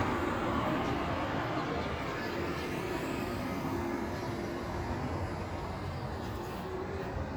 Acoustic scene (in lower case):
street